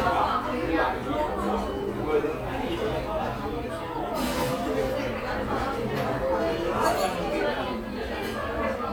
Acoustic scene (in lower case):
cafe